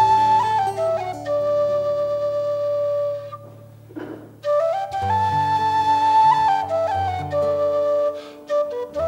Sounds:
flute, music, playing flute

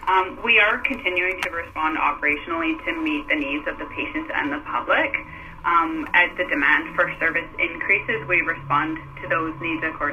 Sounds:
speech, radio

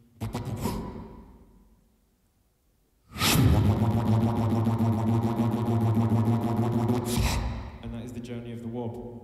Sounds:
speech, inside a large room or hall, beatboxing

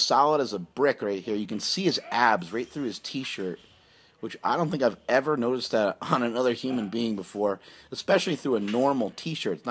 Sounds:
speech

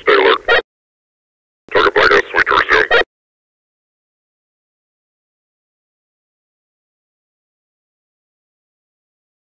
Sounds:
police radio chatter

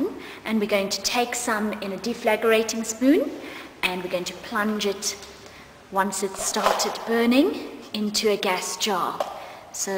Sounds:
speech

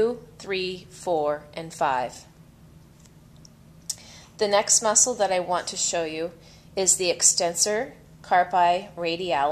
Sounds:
speech

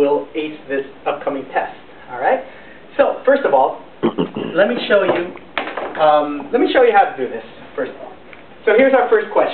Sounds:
speech

